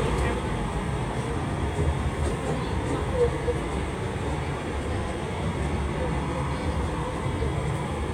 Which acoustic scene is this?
subway train